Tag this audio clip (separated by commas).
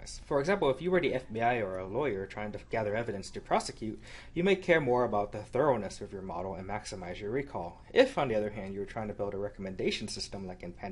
Speech